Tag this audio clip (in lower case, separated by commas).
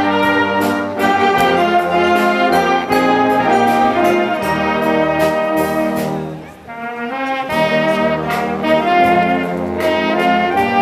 orchestra, music, brass instrument, wind instrument